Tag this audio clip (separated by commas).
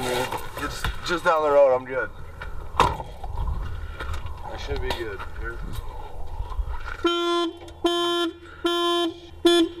Speech